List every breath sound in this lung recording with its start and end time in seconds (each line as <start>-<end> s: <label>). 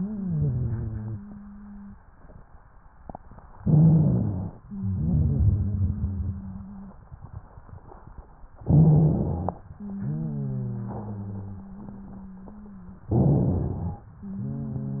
0.00-1.96 s: wheeze
0.00-1.97 s: exhalation
3.58-4.55 s: rhonchi
3.62-4.56 s: inhalation
4.68-7.02 s: exhalation
4.68-7.02 s: wheeze
8.62-9.59 s: rhonchi
8.64-9.58 s: inhalation
9.76-13.08 s: exhalation
9.76-13.08 s: wheeze
13.08-14.05 s: rhonchi
13.12-14.06 s: inhalation
14.20-15.00 s: exhalation
14.20-15.00 s: wheeze